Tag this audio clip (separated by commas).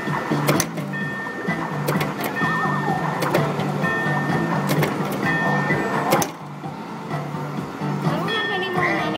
Music, Speech